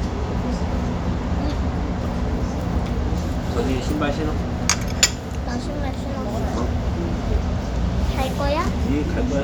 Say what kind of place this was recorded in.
restaurant